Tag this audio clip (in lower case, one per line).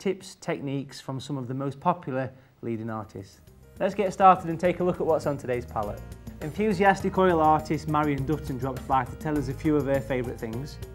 music
speech